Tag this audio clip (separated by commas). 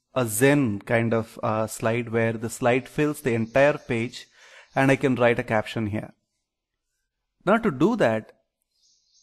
Speech